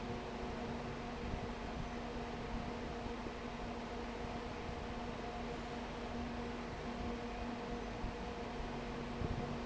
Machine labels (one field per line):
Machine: fan